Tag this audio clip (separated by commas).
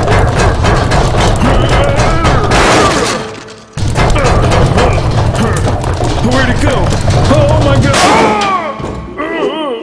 Speech